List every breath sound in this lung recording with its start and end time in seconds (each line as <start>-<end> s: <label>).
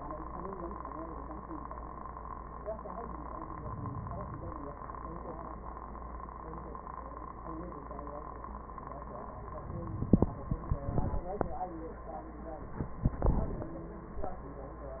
3.32-4.64 s: inhalation